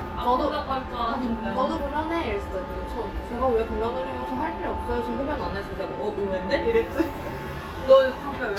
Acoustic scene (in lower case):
restaurant